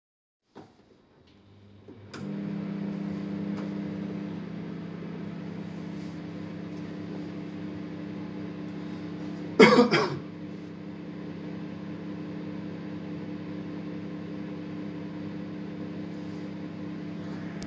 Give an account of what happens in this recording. I turned on my microwave. After a few seconds i coughed.